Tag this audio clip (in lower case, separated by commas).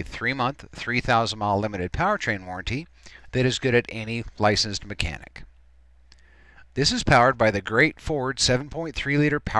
speech